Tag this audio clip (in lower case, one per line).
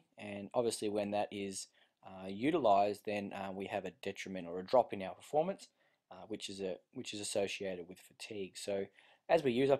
speech